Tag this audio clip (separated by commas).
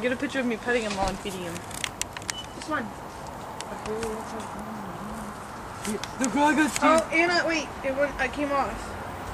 Speech